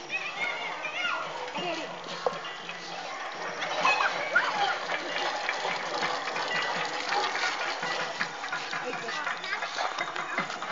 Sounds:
outside, rural or natural
speech

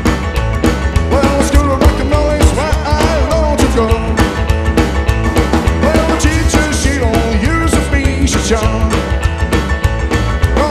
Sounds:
music

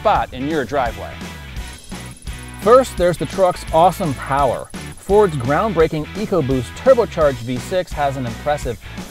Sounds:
music
speech

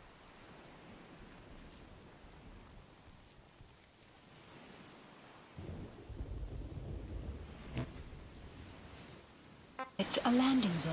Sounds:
rustle

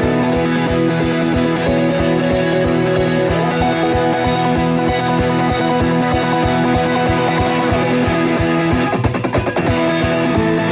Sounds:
plucked string instrument
guitar
music

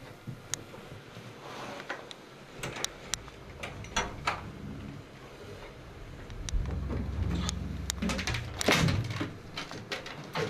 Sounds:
walk

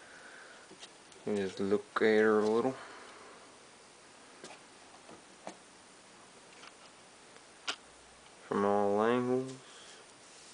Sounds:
speech

